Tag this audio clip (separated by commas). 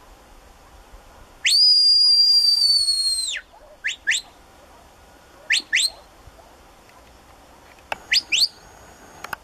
Dog, Animal